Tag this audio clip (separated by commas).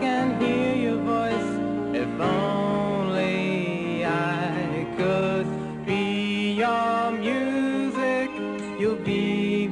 Music